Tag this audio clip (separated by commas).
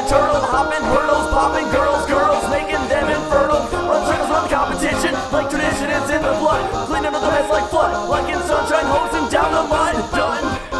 Music